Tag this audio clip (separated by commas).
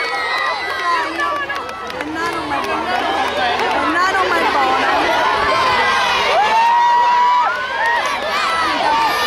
Cheering